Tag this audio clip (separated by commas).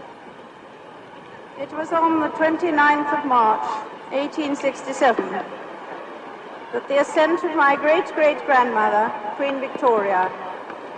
woman speaking, Speech, Narration